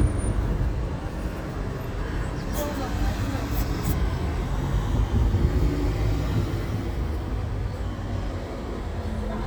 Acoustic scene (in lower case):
street